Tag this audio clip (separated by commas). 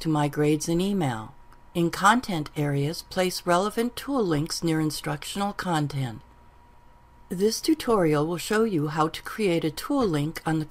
Narration